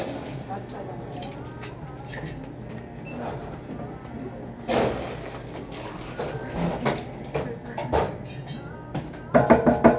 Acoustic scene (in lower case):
cafe